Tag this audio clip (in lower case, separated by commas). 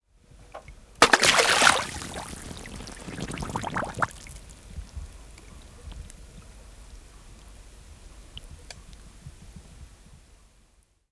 liquid, splash